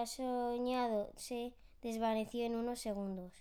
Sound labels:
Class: speech